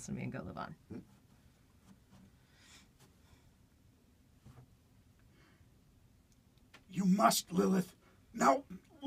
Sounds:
inside a small room, speech

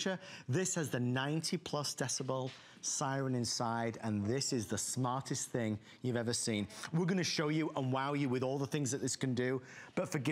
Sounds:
speech

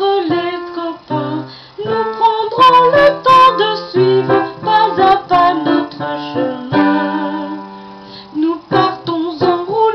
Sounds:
music

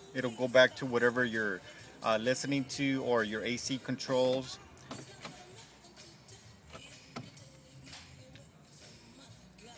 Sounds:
music, speech

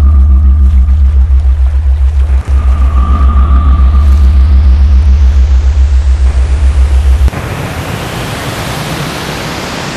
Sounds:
pink noise

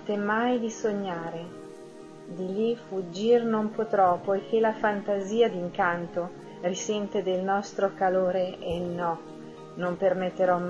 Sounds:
music, speech

